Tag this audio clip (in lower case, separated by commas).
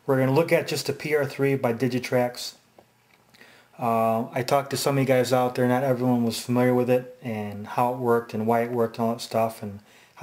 speech